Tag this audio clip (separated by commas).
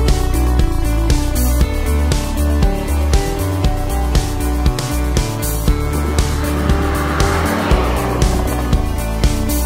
Vehicle, Car passing by, Music